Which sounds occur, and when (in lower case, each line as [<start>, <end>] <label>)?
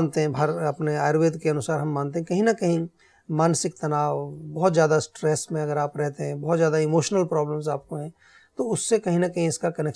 [0.00, 2.91] man speaking
[2.94, 3.25] breathing
[3.27, 8.14] man speaking
[8.16, 8.53] breathing
[8.59, 9.95] man speaking